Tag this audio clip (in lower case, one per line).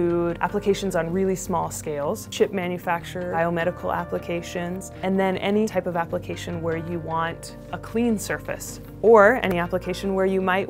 speech
music